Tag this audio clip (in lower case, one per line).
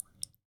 rain
raindrop
water